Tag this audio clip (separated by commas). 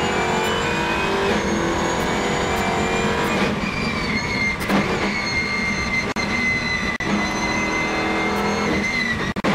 Vehicle, Car, Race car